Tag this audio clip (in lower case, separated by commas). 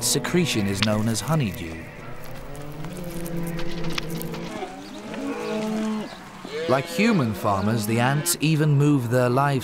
speech